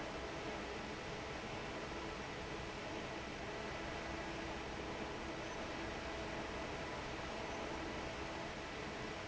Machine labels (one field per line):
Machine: fan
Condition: normal